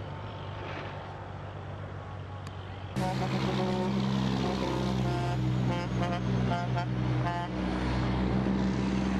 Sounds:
Motor vehicle (road), Truck, Vehicle

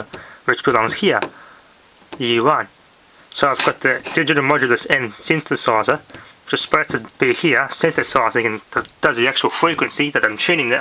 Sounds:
Speech

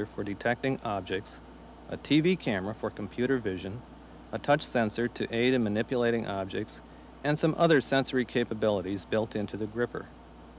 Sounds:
Speech, monologue, man speaking

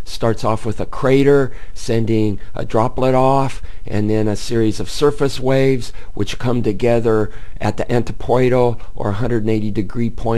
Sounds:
Speech

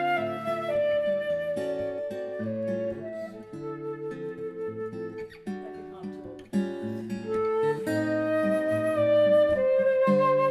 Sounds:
Plucked string instrument, Musical instrument, Acoustic guitar, Music, Guitar

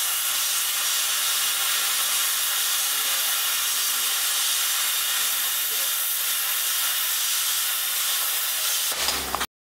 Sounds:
Tools, Speech

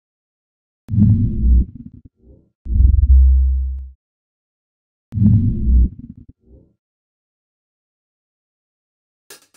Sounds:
Music, Speech, outside, urban or man-made

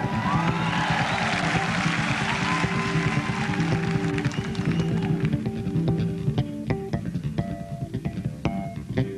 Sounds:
Music

